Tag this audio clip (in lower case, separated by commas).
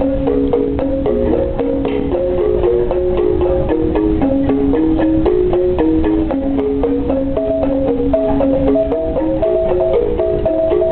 music, traditional music